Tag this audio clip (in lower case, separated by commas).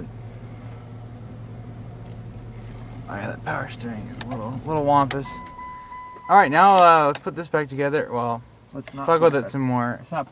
speech, car, vehicle